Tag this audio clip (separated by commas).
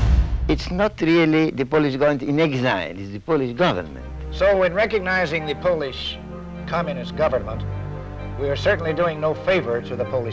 Speech, Music